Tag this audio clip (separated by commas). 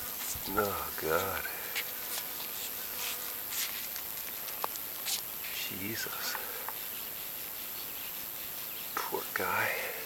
Speech